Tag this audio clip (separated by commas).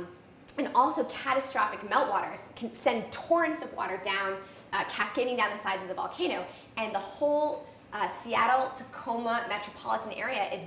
Speech, Female speech